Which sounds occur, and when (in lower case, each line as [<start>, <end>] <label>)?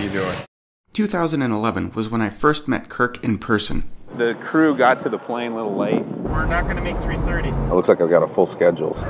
[0.00, 0.44] conversation
[0.00, 0.44] male speech
[0.00, 0.45] wind
[0.84, 9.05] wind
[0.87, 9.05] conversation
[0.90, 3.85] male speech
[4.06, 6.02] male speech
[6.21, 7.53] male speech
[6.24, 9.05] car
[7.73, 9.03] male speech